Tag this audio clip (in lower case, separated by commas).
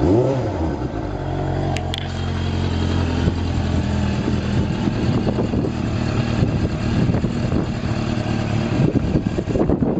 driving motorcycle, vehicle, motorcycle, idling